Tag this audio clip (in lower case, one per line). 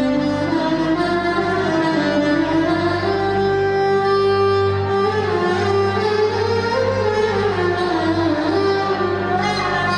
music
musical instrument
fiddle